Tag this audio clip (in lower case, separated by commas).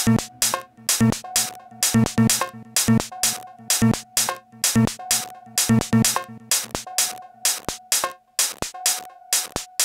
music, techno, synthesizer, electronic music, drum machine